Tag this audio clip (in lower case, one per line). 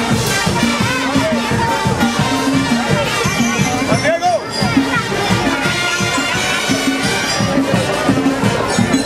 music
crowd
speech
outside, urban or man-made